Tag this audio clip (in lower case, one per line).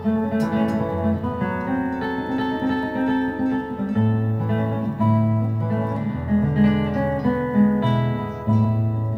guitar
plucked string instrument
musical instrument
music
strum
acoustic guitar